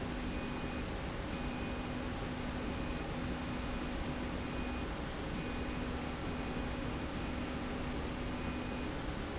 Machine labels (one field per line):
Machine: slide rail